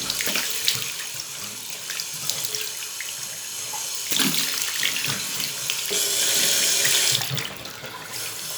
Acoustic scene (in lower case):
restroom